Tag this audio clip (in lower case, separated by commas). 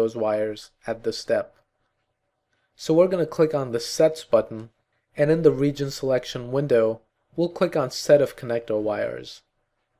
speech